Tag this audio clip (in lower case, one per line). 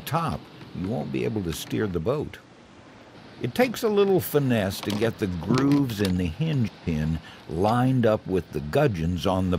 speech